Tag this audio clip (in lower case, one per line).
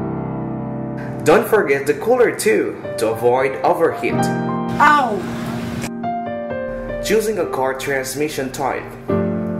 speech
vehicle
music